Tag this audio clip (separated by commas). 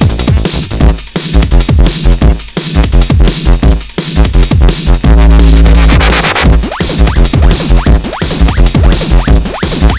Music